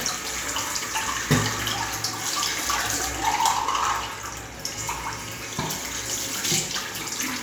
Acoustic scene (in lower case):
restroom